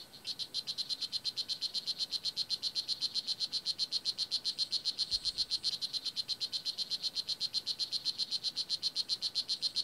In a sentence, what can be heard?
A continuous beeping occurs